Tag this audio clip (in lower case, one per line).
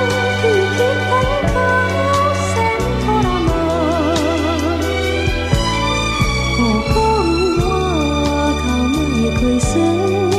music